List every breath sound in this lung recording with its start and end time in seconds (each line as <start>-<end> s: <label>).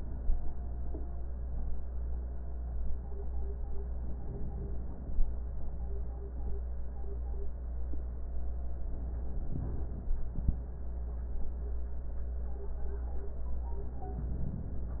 3.95-5.33 s: inhalation
8.90-10.17 s: inhalation